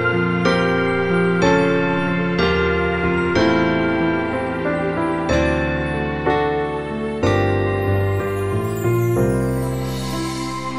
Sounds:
music

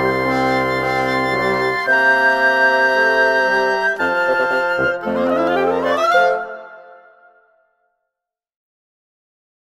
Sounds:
silence
music

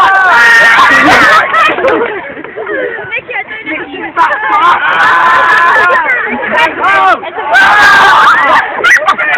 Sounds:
speech

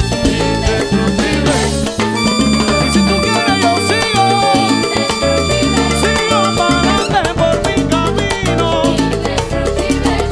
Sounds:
playing timbales

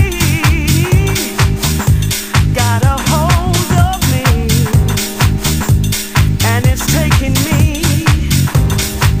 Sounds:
funk

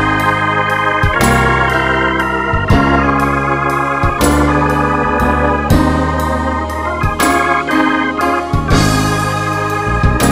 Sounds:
background music
music
tender music

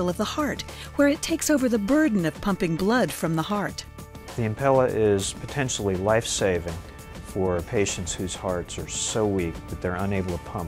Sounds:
music
speech

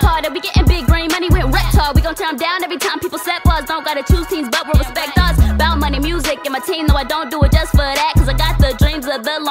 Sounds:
sampler
music

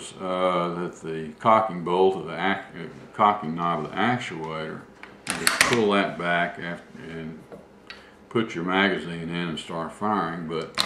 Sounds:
speech

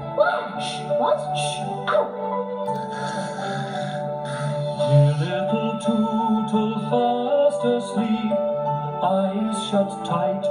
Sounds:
music
tender music

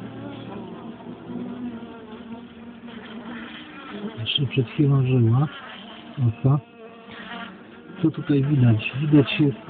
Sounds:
fly
bee or wasp
insect

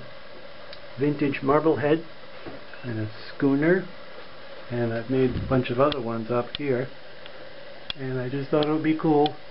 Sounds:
speech

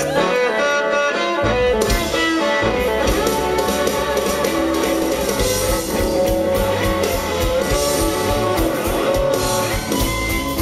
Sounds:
blues
music

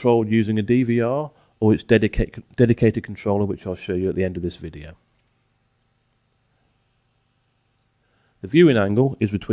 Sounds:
speech

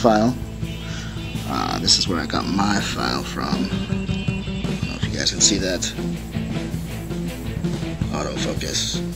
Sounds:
music
speech

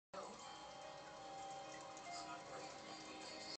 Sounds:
music
speech

